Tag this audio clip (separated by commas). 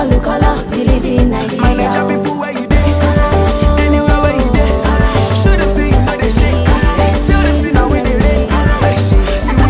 Music, Afrobeat, Electronic music, Music of Africa